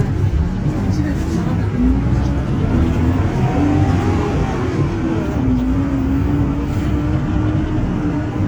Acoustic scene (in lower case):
bus